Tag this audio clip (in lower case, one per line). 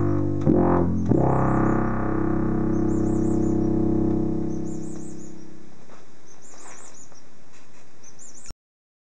tweet
bird
bird vocalization